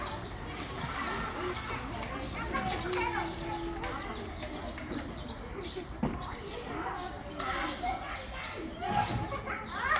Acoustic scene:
park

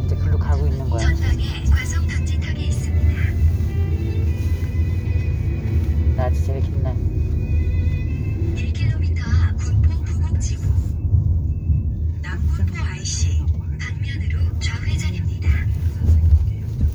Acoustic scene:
car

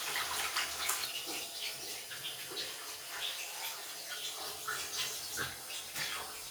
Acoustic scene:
restroom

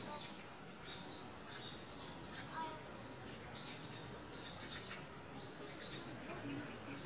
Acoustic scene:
park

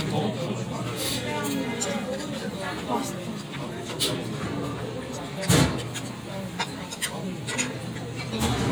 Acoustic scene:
crowded indoor space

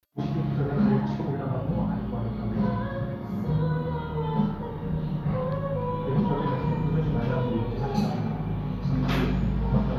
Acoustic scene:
cafe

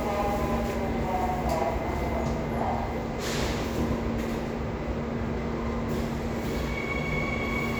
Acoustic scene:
subway station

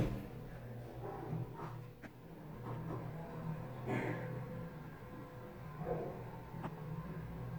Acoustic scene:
elevator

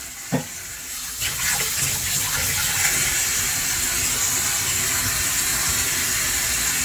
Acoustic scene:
kitchen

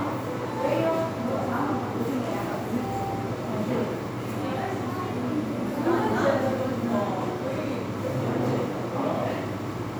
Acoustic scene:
crowded indoor space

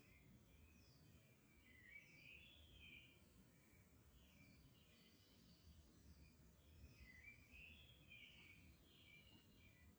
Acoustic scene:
park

